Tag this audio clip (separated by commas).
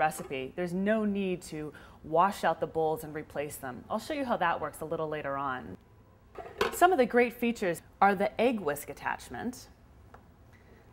Speech